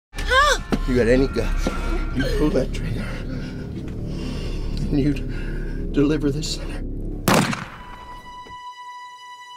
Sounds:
music, gunshot, speech

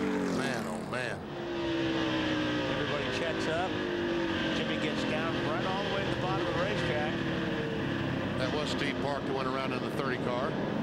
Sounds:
motor vehicle (road), vehicle, car, car passing by, speech

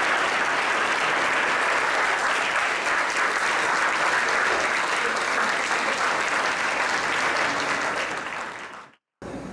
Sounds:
female speech, speech, narration

